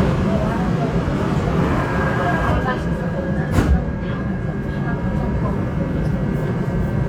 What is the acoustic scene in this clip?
subway train